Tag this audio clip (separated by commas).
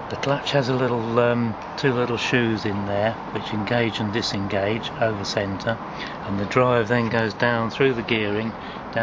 Speech